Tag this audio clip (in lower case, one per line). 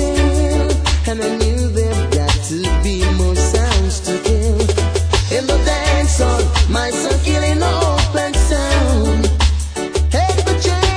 music